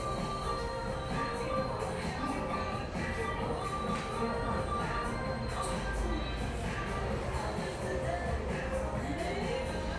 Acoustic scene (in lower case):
cafe